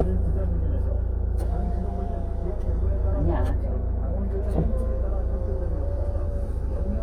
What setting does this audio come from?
car